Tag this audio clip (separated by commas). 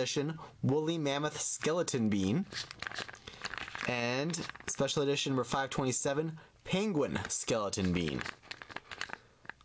inside a small room, Speech